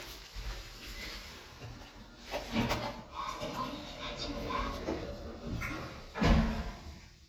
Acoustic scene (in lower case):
elevator